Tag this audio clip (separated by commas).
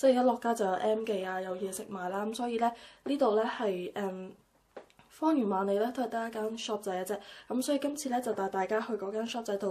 Speech